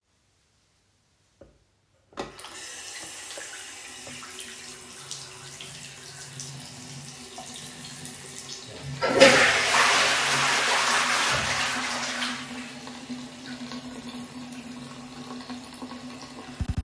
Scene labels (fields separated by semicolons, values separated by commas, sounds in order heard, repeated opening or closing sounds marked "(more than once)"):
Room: lavatory; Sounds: running water, toilet flushing